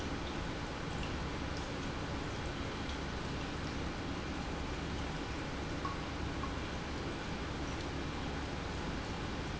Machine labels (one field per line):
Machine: pump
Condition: normal